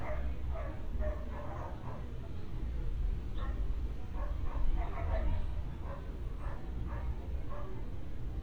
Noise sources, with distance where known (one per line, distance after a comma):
dog barking or whining, near